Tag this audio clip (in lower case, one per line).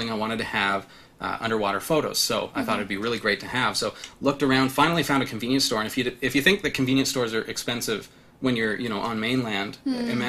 speech